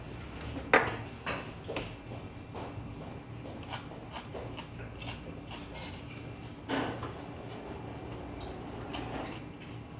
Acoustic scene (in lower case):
restaurant